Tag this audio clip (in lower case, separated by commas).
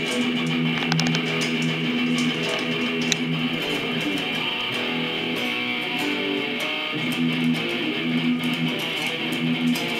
music, guitar, musical instrument